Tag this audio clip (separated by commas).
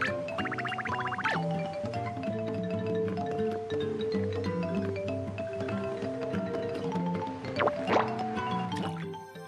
Music